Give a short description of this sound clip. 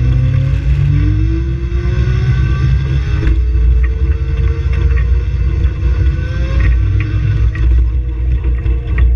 Vehicle accelerating and manually shifting gears